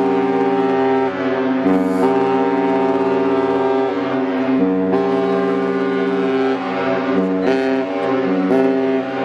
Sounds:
Ship, Water vehicle

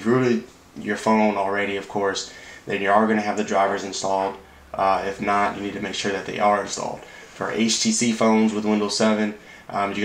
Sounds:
Speech

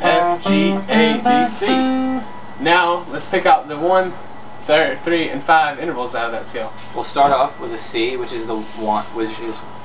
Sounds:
Guitar, Acoustic guitar, Musical instrument, Music, Plucked string instrument, Speech

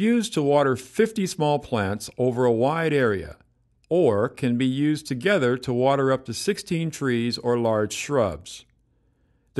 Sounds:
Speech

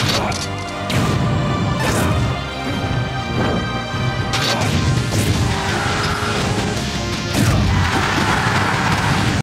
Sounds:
Music

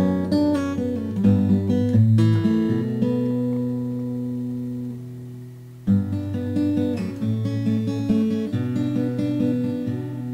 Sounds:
Acoustic guitar, Musical instrument, Music, Plucked string instrument, Guitar, inside a small room

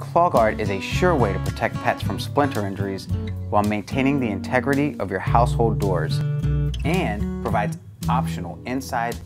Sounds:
Music, Speech

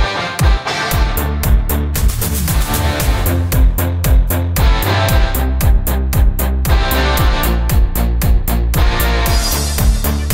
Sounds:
Music

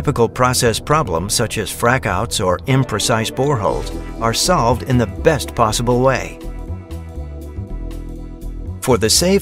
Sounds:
Speech, Music

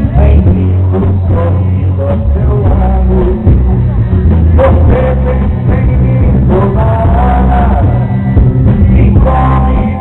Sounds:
Music, Rock and roll

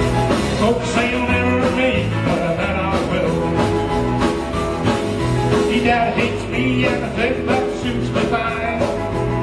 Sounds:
Music

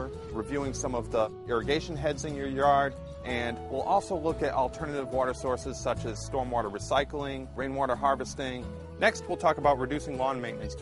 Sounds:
Speech, Music

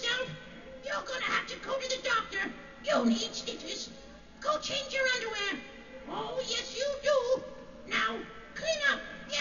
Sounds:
Speech

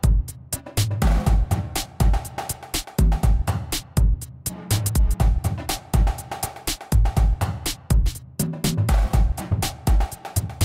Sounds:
Music

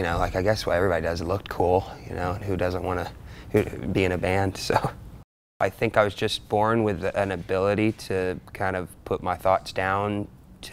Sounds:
Speech

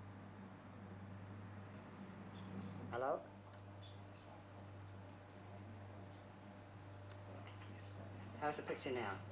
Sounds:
Speech

